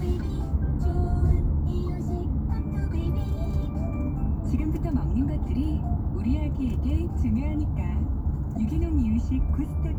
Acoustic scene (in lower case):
car